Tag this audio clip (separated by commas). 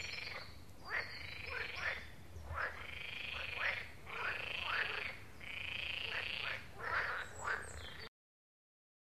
frog croaking